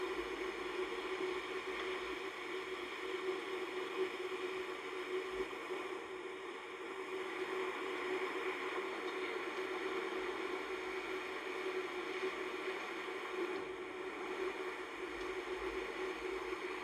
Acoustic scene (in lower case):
car